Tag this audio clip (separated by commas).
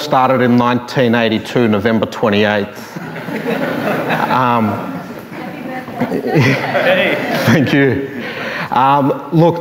Speech